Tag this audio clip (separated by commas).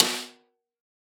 Snare drum, Percussion, Musical instrument, Drum, Music